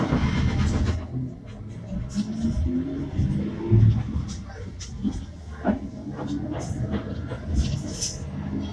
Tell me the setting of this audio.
bus